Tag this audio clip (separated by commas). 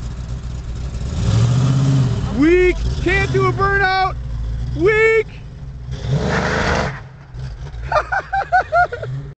Speech